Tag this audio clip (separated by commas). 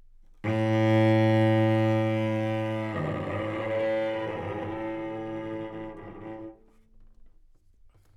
Music, Bowed string instrument, Musical instrument